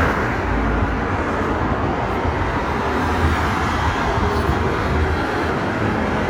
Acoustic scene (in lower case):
street